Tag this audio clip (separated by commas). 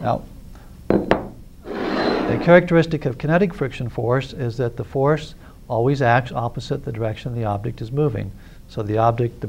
Speech